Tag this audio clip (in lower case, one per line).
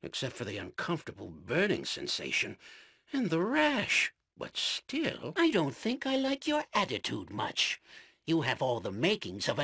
speech